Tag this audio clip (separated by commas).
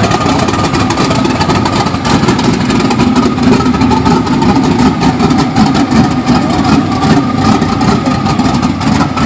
Vehicle